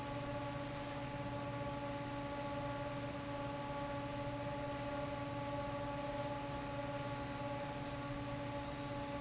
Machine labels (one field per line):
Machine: fan